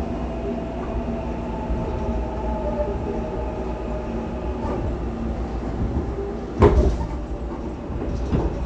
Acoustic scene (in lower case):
subway train